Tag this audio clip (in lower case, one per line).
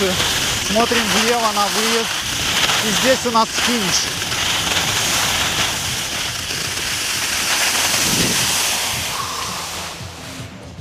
skiing